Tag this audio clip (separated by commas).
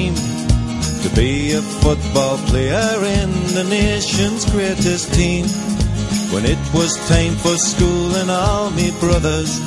Singing, Jingle (music), Music